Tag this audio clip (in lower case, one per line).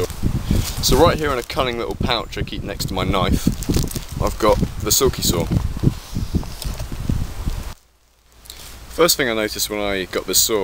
speech